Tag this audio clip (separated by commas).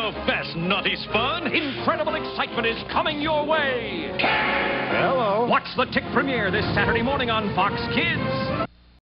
Speech, Music